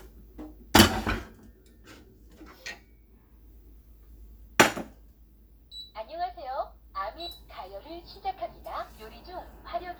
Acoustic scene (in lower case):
kitchen